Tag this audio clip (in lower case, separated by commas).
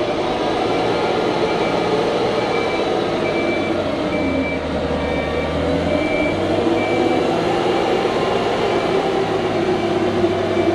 vehicle